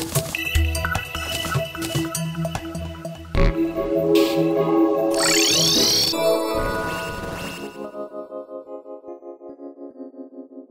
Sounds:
Music

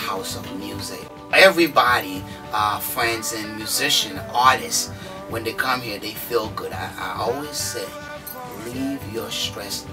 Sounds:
Speech, Music

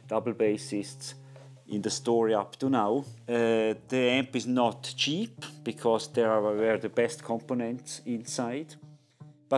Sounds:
Music, Speech

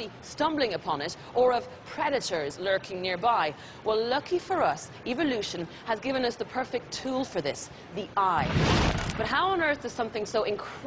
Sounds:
Speech

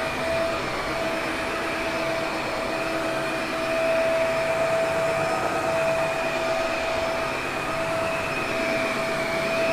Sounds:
vacuum cleaner cleaning floors

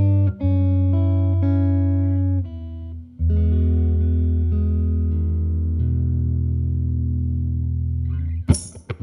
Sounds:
Electric guitar, Guitar, Plucked string instrument, Strum, Music, Musical instrument, Acoustic guitar

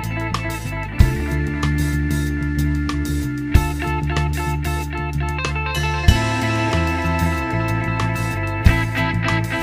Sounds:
Music

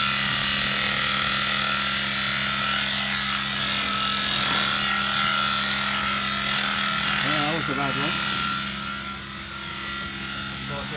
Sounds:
Speech

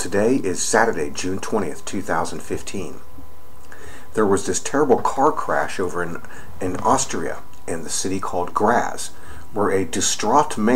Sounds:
Speech

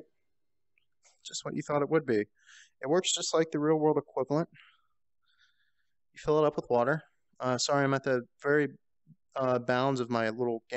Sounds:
Speech

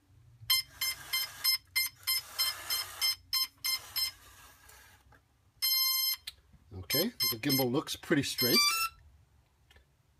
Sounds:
Speech

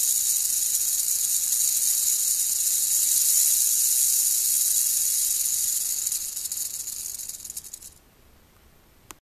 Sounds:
Snake

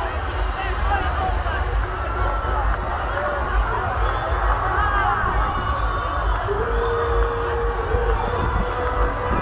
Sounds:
Music, Speech

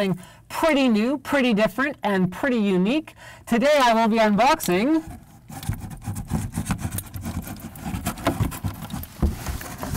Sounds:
inside a small room, Speech

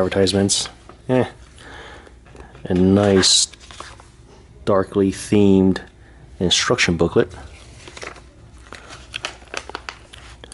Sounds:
Speech, inside a small room

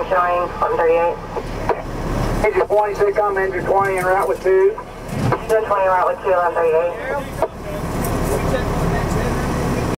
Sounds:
Speech, Vehicle

